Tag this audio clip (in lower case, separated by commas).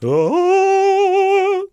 male singing, human voice, singing